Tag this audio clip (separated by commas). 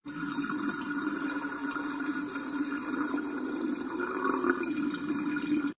home sounds, Sink (filling or washing), Water